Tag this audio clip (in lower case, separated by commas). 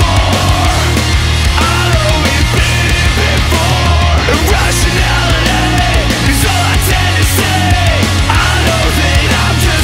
music